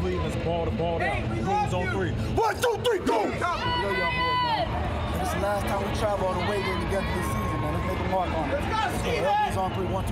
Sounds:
Speech

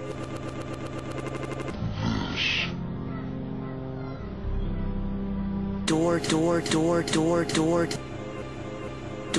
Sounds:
Music, Speech

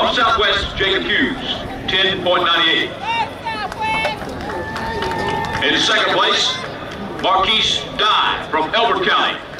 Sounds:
outside, urban or man-made, Speech

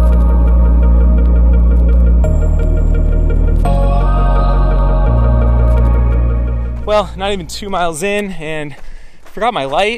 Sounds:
Music, Ambient music

